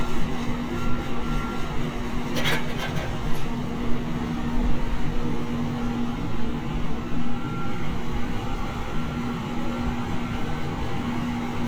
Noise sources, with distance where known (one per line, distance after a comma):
large-sounding engine
reverse beeper, far